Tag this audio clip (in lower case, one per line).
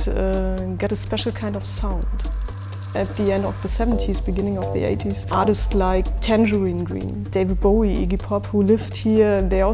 music
speech